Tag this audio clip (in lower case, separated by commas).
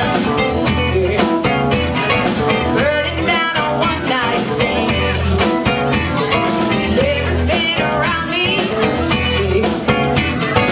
tender music, music